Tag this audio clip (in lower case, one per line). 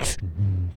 respiratory sounds
breathing